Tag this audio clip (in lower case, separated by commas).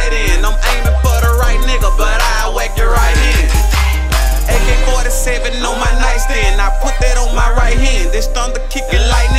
music